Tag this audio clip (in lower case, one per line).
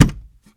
thud